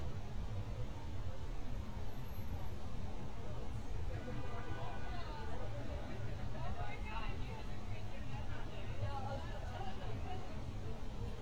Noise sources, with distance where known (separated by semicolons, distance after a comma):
car horn, far; person or small group talking, far